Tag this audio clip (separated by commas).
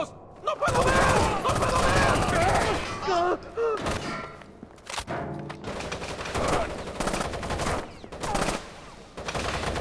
Speech, inside a large room or hall